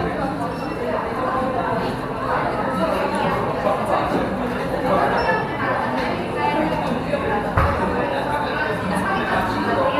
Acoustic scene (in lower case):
cafe